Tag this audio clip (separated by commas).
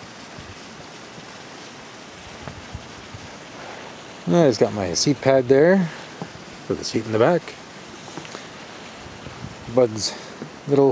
Speech